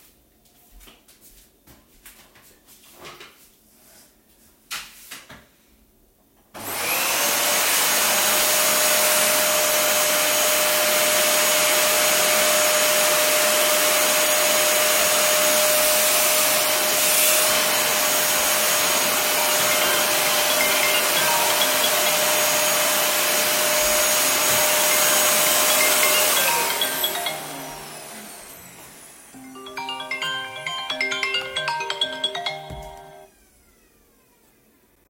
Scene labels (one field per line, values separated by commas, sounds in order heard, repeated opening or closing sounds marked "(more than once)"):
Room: living room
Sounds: vacuum cleaner, phone ringing